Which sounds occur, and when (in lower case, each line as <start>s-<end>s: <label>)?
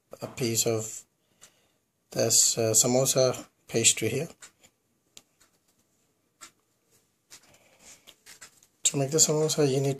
0.0s-9.9s: background noise
0.1s-1.0s: man speaking
1.4s-1.5s: generic impact sounds
2.1s-3.4s: man speaking
3.6s-4.4s: man speaking
4.4s-4.6s: generic impact sounds
5.1s-5.2s: generic impact sounds
5.4s-5.8s: generic impact sounds
6.4s-6.5s: generic impact sounds
6.9s-7.0s: generic impact sounds
7.3s-8.1s: generic impact sounds
8.3s-8.7s: generic impact sounds
8.8s-9.9s: man speaking